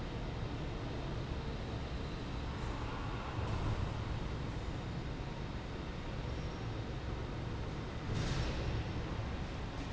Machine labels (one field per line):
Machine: fan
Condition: normal